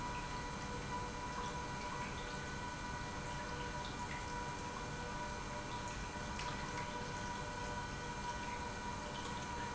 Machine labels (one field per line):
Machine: pump